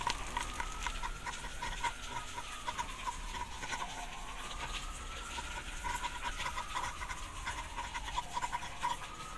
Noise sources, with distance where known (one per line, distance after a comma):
siren